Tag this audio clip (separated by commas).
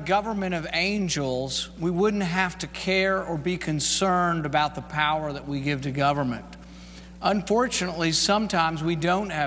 man speaking, Speech